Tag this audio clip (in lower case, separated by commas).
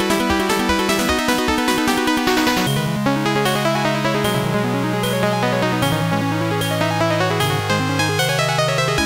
pop music, soundtrack music, theme music, music